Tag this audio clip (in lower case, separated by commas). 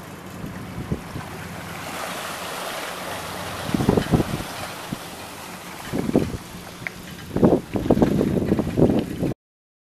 vehicle, boat